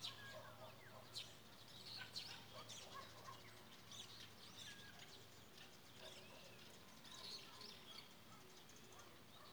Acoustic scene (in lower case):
park